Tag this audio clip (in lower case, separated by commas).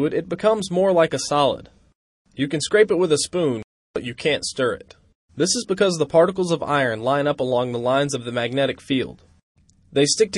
speech